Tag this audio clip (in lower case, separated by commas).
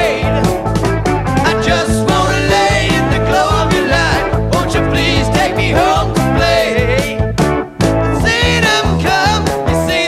roll, music, rock and roll